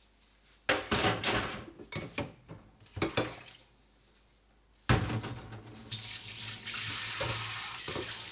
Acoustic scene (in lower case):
kitchen